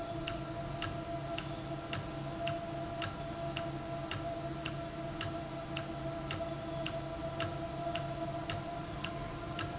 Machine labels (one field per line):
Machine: valve